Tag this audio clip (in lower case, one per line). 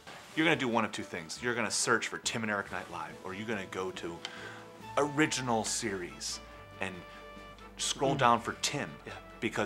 music
speech